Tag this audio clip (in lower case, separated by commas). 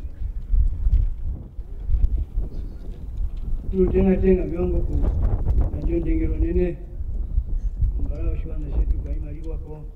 male speech, speech